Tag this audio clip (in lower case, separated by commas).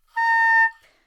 music, woodwind instrument, musical instrument